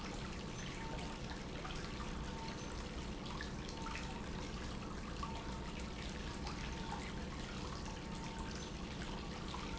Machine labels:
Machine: pump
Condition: normal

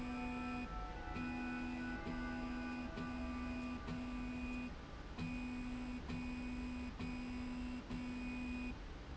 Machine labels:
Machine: slide rail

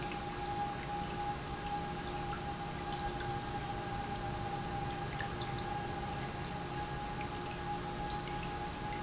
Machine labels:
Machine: pump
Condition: normal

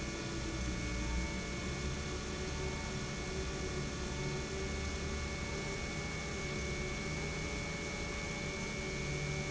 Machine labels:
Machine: pump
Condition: normal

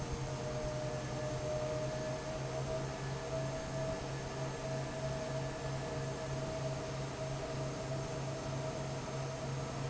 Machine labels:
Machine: fan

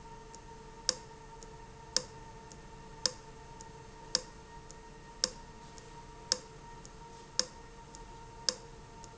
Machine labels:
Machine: valve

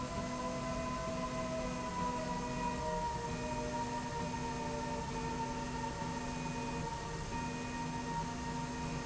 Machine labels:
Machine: slide rail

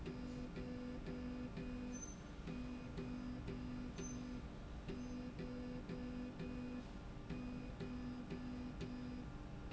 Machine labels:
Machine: slide rail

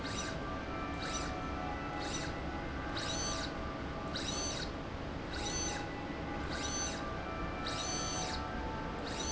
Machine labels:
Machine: slide rail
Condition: abnormal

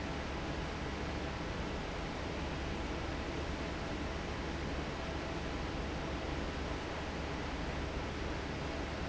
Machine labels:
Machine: fan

